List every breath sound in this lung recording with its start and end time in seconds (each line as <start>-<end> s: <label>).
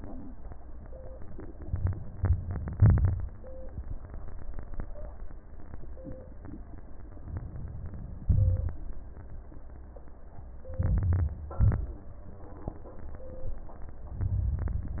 1.68-2.71 s: inhalation
2.72-3.58 s: exhalation
2.72-3.58 s: crackles
7.22-8.28 s: inhalation
8.24-9.30 s: exhalation
10.70-11.55 s: crackles
10.72-11.58 s: inhalation
11.58-12.49 s: crackles
11.60-12.46 s: exhalation
14.16-15.00 s: inhalation